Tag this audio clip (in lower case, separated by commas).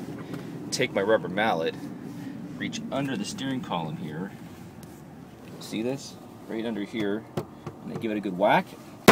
vehicle